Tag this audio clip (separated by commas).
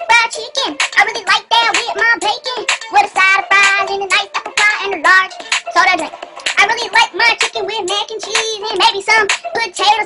Music